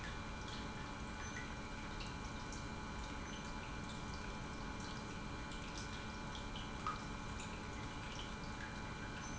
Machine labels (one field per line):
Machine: pump